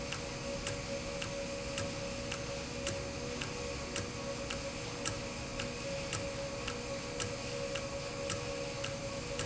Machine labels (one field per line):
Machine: valve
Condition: normal